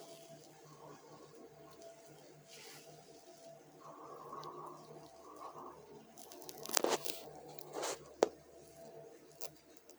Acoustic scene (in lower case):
elevator